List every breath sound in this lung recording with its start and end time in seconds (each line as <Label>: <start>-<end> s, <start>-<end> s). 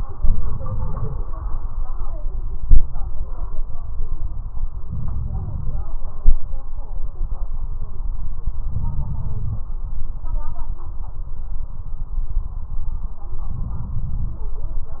Inhalation: 0.00-1.26 s, 4.82-5.84 s, 8.70-9.65 s, 13.48-14.43 s